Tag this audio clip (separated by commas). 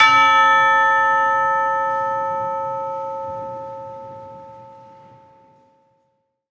Musical instrument, Church bell, Percussion, Music, Bell